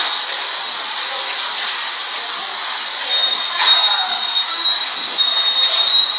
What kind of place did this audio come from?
subway station